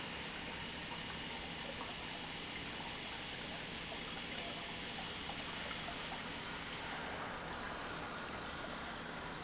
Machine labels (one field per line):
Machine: pump